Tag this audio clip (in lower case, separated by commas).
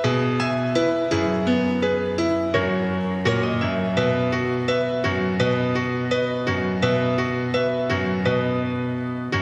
music